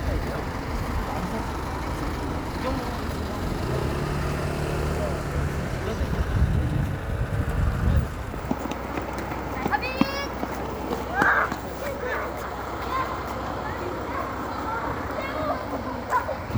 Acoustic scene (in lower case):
street